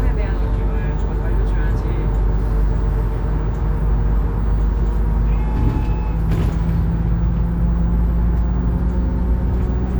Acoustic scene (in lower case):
bus